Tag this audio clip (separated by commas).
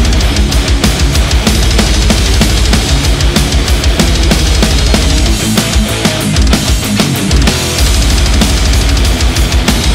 Disco, Rhythm and blues, Music